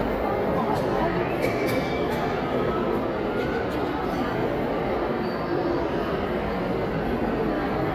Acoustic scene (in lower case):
crowded indoor space